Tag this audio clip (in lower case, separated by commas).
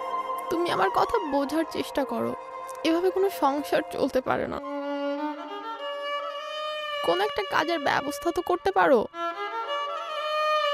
speech, music, bowed string instrument